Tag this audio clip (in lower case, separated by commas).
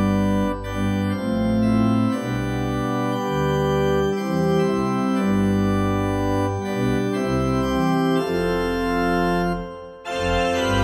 playing electronic organ